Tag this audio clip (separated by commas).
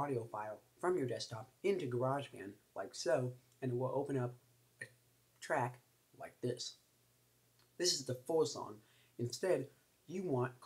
Speech